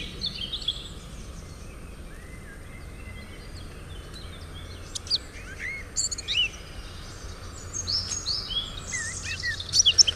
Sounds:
Environmental noise, Bird

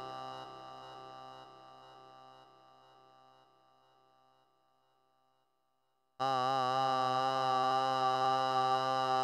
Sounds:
Synthesizer

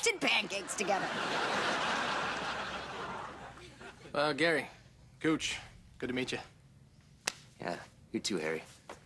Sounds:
Speech

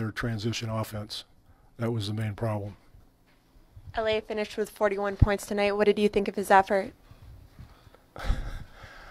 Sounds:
inside a small room, Speech

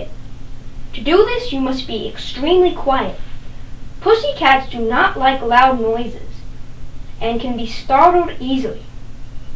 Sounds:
Speech

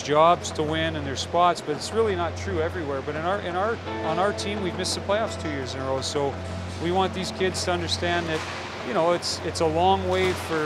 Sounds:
Music, Speech

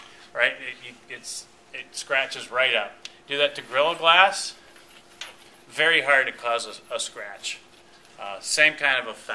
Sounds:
Speech, inside a small room

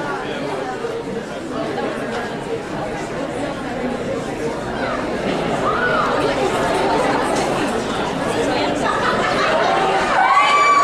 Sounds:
inside a large room or hall, Speech, Chatter

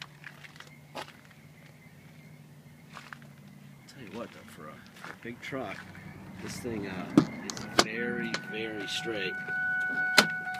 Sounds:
Vehicle, Speech

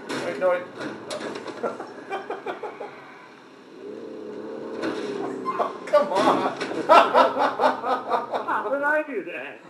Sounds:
Crackle, Speech, Vehicle

